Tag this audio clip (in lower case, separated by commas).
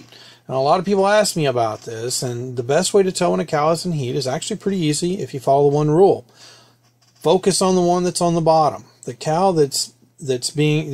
speech